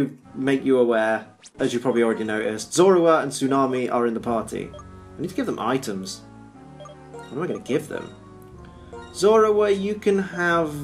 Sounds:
Speech, Music

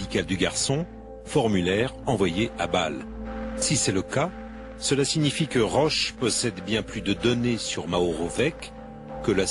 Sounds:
Speech, Music

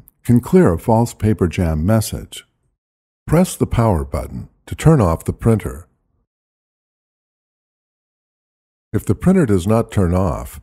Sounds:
Speech

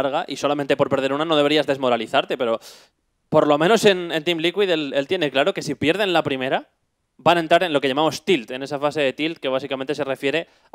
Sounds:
Speech

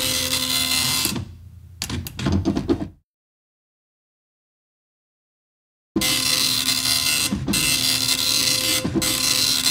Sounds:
Printer

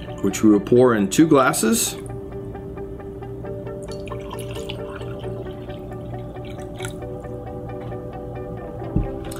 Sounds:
Speech, Music

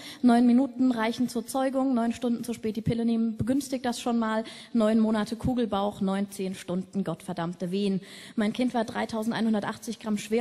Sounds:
Speech

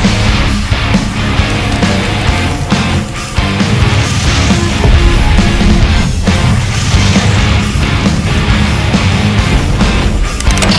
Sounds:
Pop music, Music

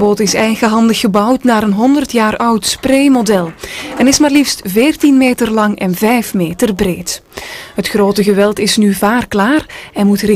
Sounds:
Speech

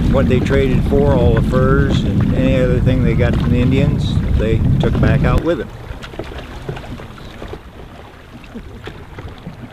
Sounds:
canoe, Speech, Vehicle, Water vehicle

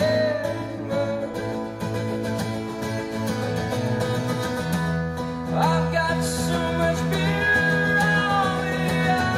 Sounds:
Singing, Music

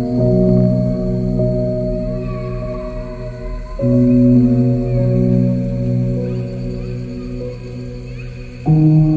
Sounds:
Music, Ambient music

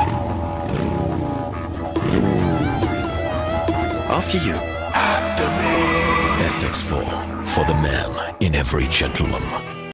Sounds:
Vehicle, Music, Car, Speech

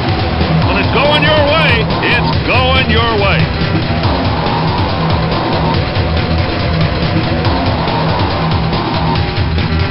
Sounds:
Car, Speech, Music

